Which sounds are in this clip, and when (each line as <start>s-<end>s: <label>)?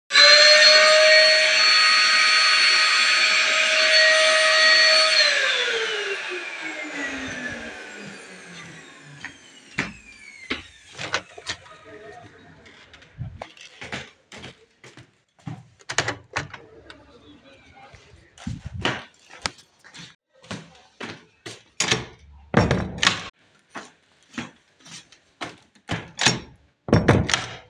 0.0s-11.7s: vacuum cleaner
13.2s-15.7s: footsteps
15.8s-16.7s: window
19.4s-21.7s: footsteps
21.8s-23.3s: door
23.6s-26.1s: footsteps
26.2s-27.7s: door